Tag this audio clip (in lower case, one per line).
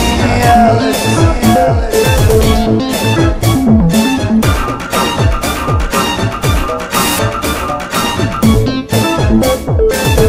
music